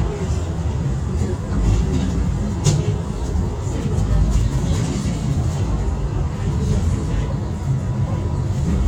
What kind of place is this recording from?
bus